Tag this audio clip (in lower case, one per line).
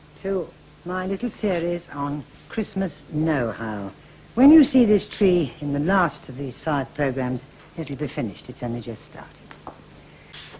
speech